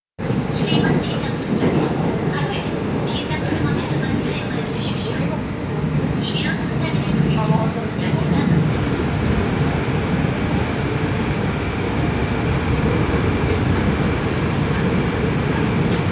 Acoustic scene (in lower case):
subway train